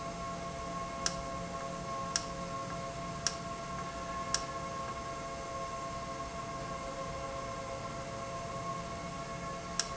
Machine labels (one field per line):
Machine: valve